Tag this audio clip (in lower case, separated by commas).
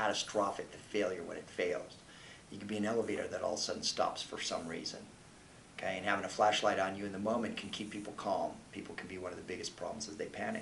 speech